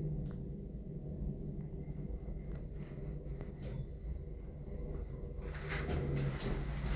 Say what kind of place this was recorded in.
elevator